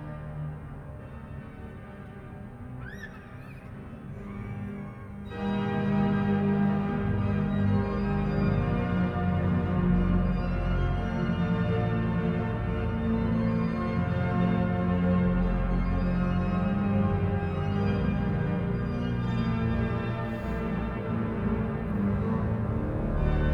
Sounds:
Organ, Musical instrument, Music, Keyboard (musical)

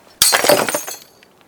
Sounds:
Glass, Shatter

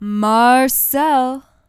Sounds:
Human voice, woman speaking, Speech

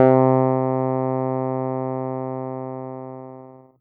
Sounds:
Music, Keyboard (musical), Musical instrument

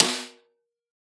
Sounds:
Drum, Musical instrument, Music, Snare drum, Percussion

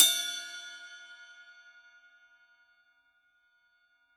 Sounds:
Music, Percussion, Hi-hat, Cymbal, Musical instrument

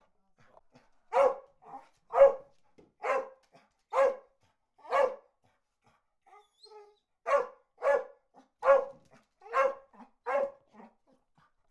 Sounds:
Bark, Dog, Domestic animals, Animal

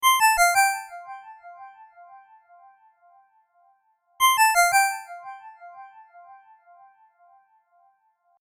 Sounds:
Telephone, Alarm, Ringtone

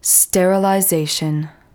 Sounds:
Speech, Human voice, Female speech

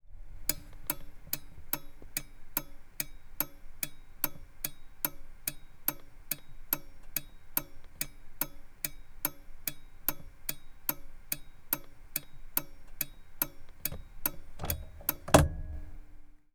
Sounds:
Vehicle, Motor vehicle (road)

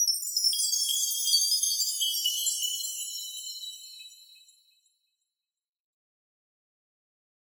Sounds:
Chime, Bell

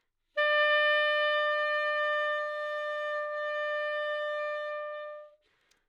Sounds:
woodwind instrument, Music, Musical instrument

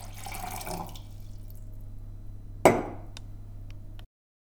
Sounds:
Fill (with liquid), Liquid, Glass, Water

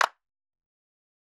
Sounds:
Hands, Clapping

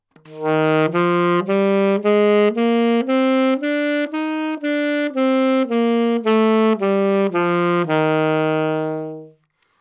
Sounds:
Music, Wind instrument, Musical instrument

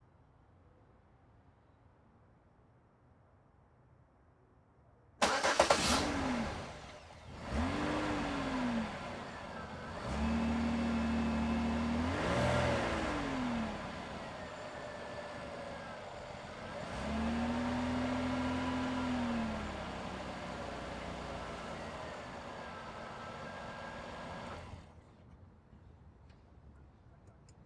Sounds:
vroom, Motor vehicle (road), Engine starting, Engine, Vehicle

